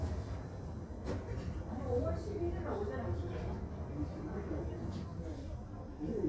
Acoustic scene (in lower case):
crowded indoor space